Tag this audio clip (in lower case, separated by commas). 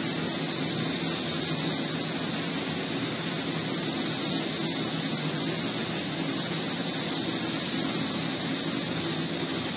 spray